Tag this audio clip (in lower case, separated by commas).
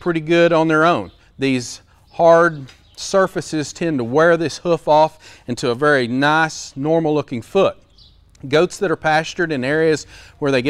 speech